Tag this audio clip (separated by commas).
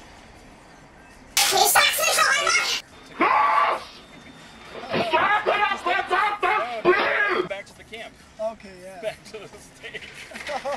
Speech, outside, urban or man-made